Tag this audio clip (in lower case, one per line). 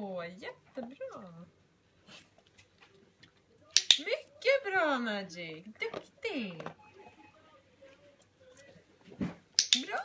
dog
speech